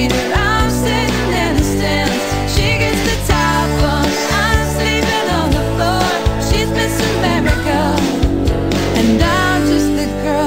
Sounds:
Music

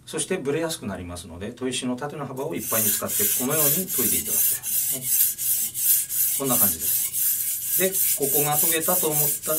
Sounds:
sharpen knife

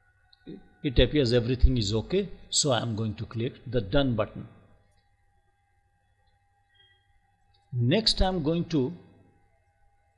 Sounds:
Speech

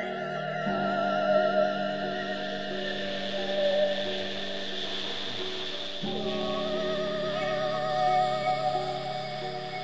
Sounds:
Music

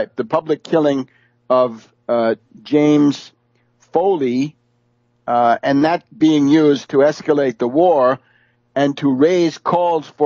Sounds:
Speech

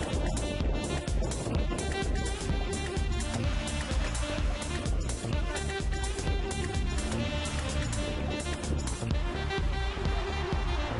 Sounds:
Car passing by, Car, Music, Vehicle

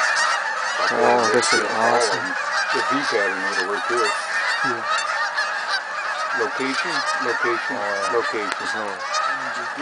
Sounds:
Honk, Speech, goose honking

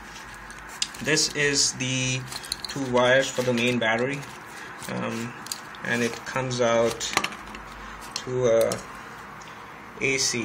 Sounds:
Speech

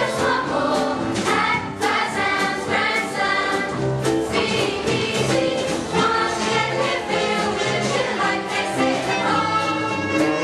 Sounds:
Music

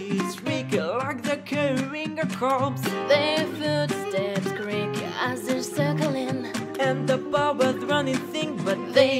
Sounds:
Music

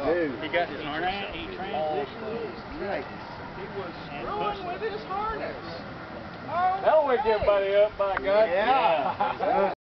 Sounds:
Wind

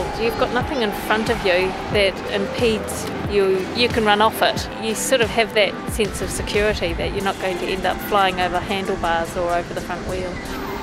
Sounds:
Music, Vehicle, Speech

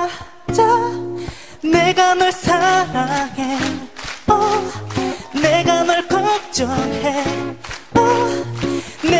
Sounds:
Female singing, Music

